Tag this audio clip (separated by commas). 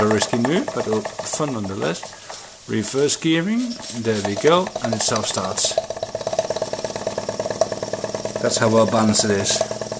Engine, Steam, Speech